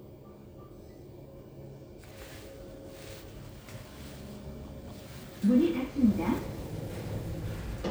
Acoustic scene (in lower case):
elevator